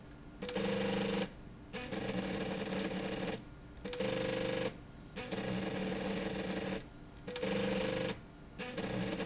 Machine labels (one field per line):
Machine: slide rail